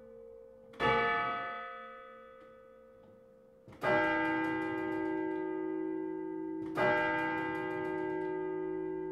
A bell is ringing